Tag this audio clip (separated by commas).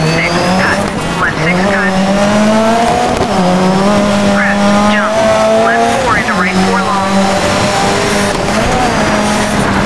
Speech